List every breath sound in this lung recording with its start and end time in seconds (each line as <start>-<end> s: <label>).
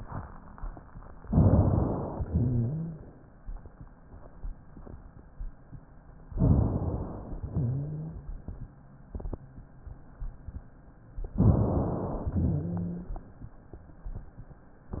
1.28-2.18 s: inhalation
2.18-3.06 s: exhalation
2.18-3.06 s: rhonchi
6.36-7.37 s: inhalation
7.42-8.26 s: exhalation
7.42-8.26 s: rhonchi
11.37-12.38 s: inhalation
12.33-13.18 s: exhalation
12.33-13.18 s: rhonchi